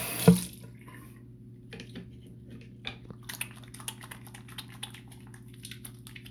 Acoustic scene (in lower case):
restroom